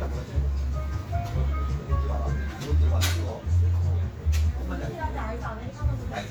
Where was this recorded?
in a cafe